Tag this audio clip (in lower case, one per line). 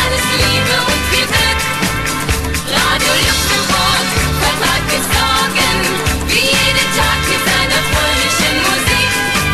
music